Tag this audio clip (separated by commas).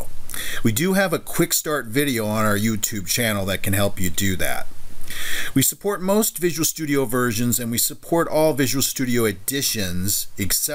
Speech